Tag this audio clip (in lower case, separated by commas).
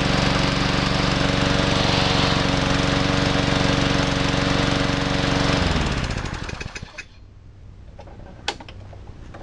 lawn mowing, lawn mower